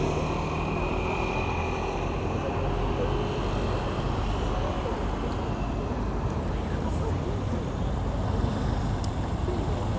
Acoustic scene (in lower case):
street